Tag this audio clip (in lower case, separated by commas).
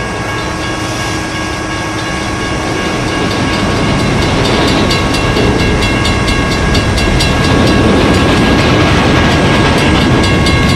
train wheels squealing